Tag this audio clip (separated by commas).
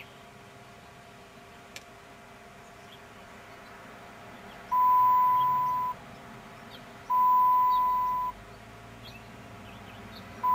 Vehicle, Car